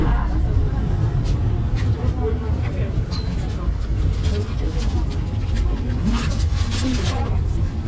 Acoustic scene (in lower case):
bus